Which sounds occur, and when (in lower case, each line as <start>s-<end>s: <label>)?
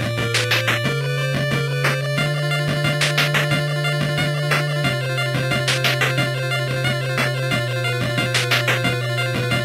0.0s-9.6s: music